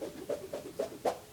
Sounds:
Whoosh

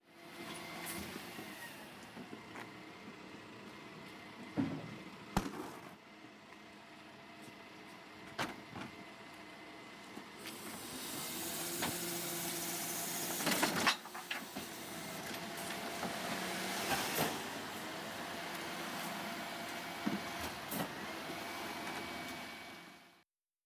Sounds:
Motor vehicle (road), Vehicle, Truck

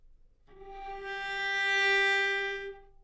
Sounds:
Music, Musical instrument, Bowed string instrument

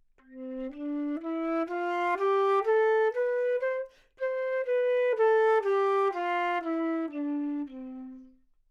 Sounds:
Music, Musical instrument, Wind instrument

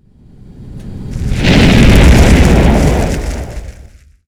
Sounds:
Fire

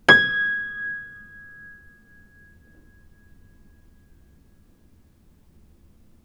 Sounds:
Musical instrument, Keyboard (musical), Music, Piano

